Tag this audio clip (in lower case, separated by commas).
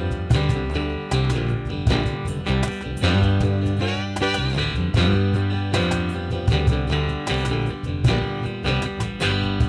musical instrument, music, guitar, plucked string instrument